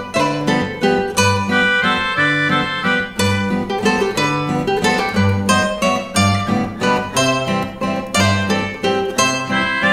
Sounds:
music

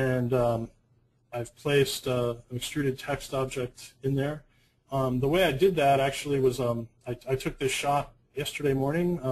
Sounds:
speech

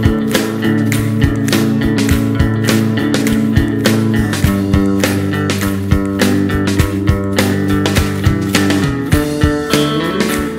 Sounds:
music

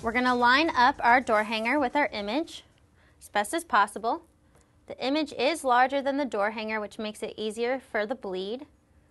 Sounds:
speech

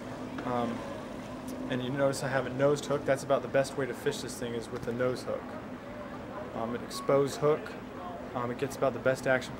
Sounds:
speech

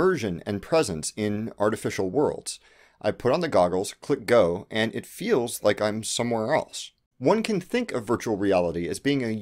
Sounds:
speech

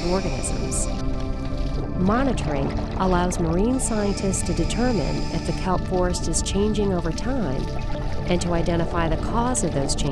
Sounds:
speech, music

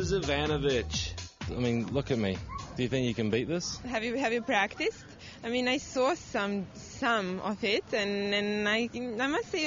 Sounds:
speech, music

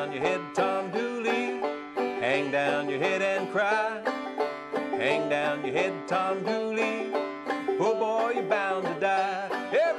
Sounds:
playing banjo

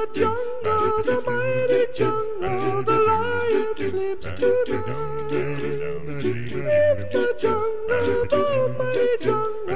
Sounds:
music

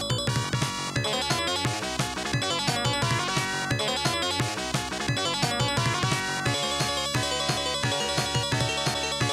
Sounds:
video game music, music

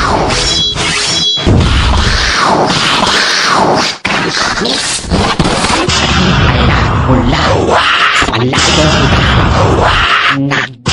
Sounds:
music, speech, electronic music, sound effect

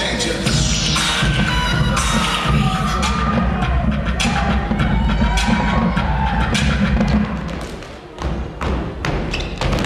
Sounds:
music, funk

